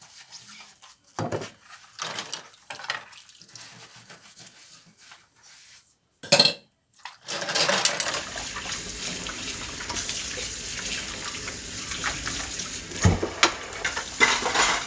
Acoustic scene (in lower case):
kitchen